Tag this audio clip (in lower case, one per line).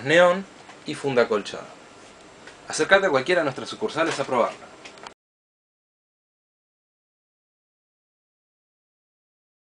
speech